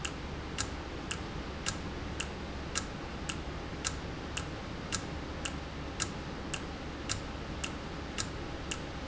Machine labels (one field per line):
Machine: valve